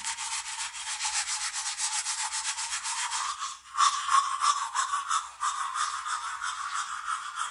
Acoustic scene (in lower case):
restroom